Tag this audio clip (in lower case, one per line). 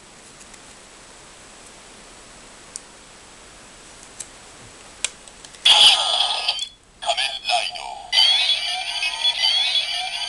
speech